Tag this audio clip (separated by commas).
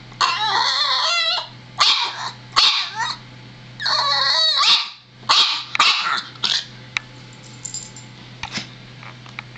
canids, pets, dog barking, Dog, Bark, Animal